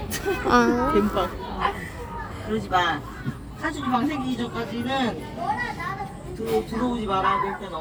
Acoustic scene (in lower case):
park